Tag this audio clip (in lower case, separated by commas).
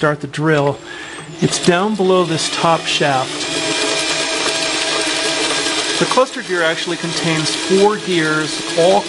pawl, gears, mechanisms